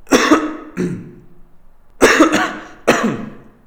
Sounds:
respiratory sounds, cough

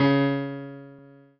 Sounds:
music, piano, keyboard (musical), musical instrument

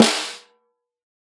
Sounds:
drum, percussion, snare drum, music, musical instrument

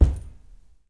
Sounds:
percussion, bass drum, musical instrument, drum, music

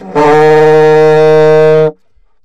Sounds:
woodwind instrument, music, musical instrument

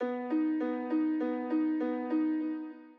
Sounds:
piano, musical instrument, keyboard (musical), music

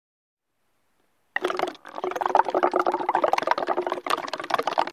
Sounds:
liquid

